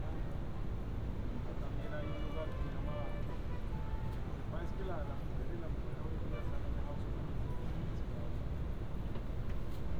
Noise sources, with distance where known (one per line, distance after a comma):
music from a fixed source, far
person or small group talking, near